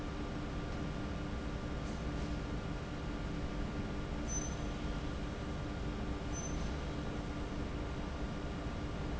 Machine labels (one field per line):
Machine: fan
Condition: abnormal